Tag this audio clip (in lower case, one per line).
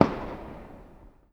fireworks
explosion